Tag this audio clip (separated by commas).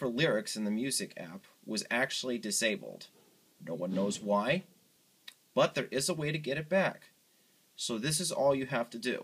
Speech